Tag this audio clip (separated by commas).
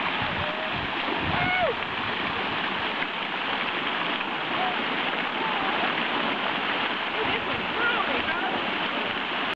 Speech